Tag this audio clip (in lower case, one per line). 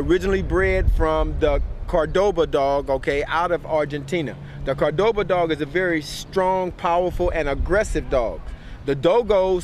speech